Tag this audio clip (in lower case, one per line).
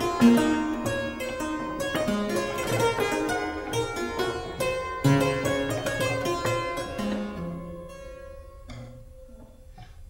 playing harpsichord